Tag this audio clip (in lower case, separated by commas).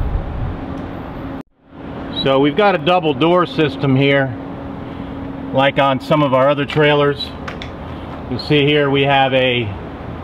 bus, speech